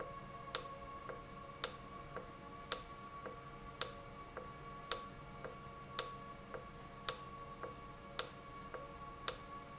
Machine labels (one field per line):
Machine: valve